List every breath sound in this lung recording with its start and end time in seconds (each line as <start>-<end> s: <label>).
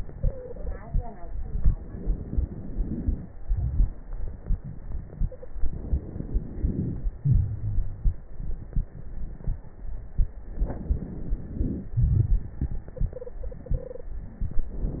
0.12-0.81 s: stridor
1.12-3.33 s: inhalation
1.12-3.33 s: crackles
3.32-5.44 s: exhalation
5.29-5.51 s: stridor
5.48-7.20 s: inhalation
7.21-8.17 s: wheeze
7.21-10.47 s: exhalation
10.47-11.91 s: inhalation
10.47-11.91 s: crackles
11.94-14.35 s: exhalation
12.96-14.11 s: stridor